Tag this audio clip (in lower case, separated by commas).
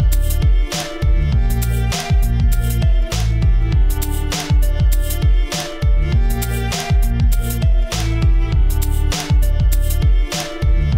musical instrument, violin, music